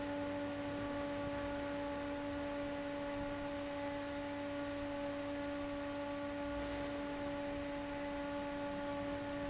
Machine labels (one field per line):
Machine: fan